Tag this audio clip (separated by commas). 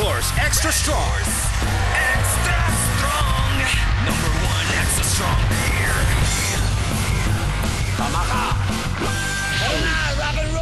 Speech, Music